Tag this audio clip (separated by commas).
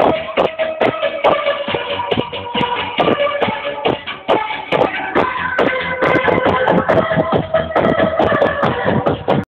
Music